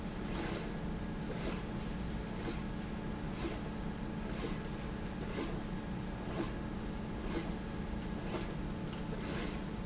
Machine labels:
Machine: slide rail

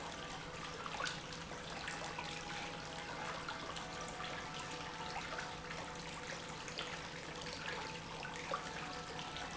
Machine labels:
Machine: pump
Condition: normal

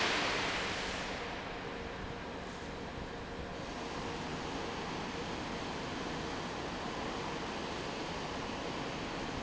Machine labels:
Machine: fan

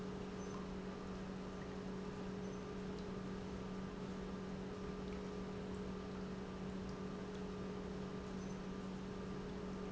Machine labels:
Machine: pump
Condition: normal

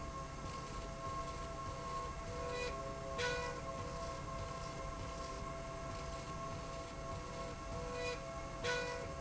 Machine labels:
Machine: slide rail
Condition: normal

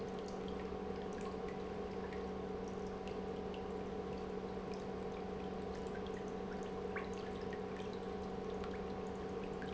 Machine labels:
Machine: pump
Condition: normal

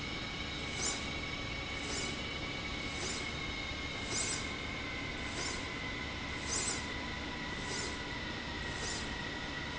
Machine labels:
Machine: slide rail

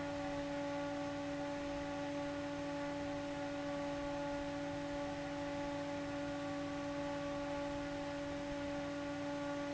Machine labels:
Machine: fan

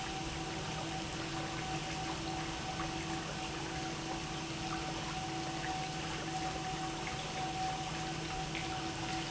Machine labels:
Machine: pump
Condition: normal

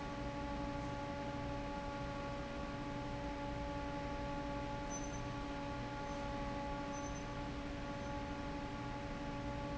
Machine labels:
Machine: fan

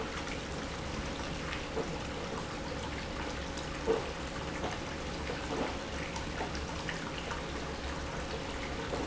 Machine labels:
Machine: pump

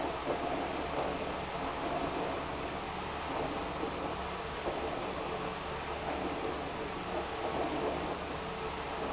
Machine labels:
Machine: pump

